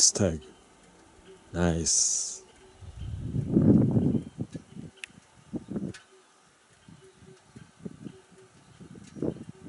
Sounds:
speech, outside, rural or natural

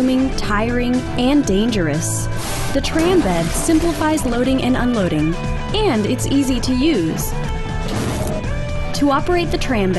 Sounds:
music, speech

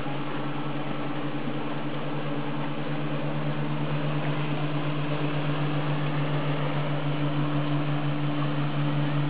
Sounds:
motorboat, boat, vehicle

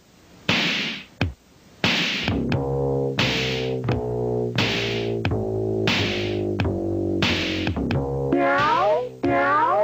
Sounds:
meow, music

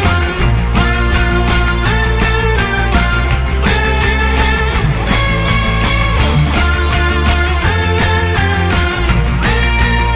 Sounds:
video game music, music

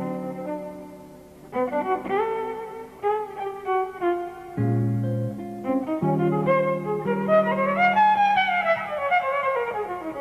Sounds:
fiddle, music, playing violin, musical instrument, bowed string instrument, jazz

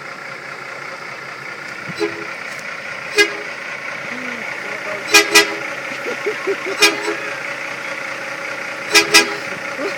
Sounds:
truck, vehicle

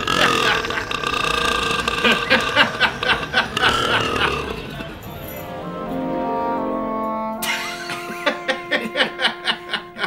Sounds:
people burping

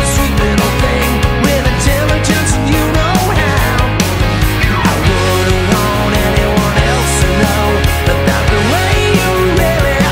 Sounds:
music, rock and roll

